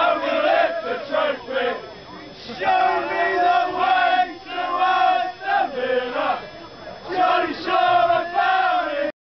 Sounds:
Speech, Male singing, Choir

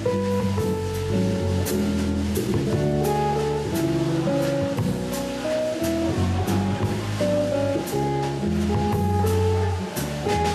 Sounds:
Music, Guitar, Strum, Musical instrument

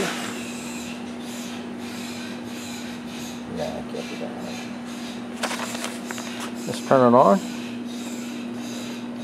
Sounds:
Speech

